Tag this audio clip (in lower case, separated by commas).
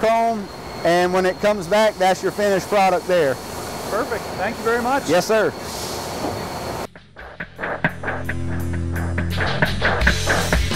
speech, music